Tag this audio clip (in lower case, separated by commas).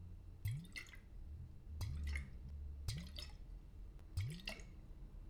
splatter, liquid